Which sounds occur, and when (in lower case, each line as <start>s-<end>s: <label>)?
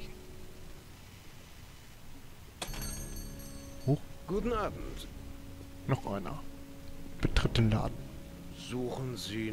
0.0s-9.5s: background noise
2.5s-4.0s: bell
3.2s-9.5s: music
3.8s-4.0s: human voice
3.8s-9.5s: conversation
4.2s-5.0s: male speech
5.8s-6.4s: male speech
7.1s-7.9s: male speech
8.5s-9.5s: male speech